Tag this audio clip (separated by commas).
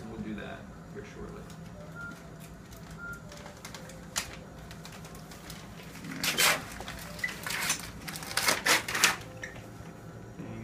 inside a public space, Speech